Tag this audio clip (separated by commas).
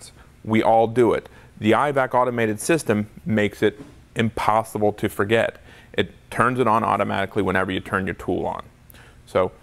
Speech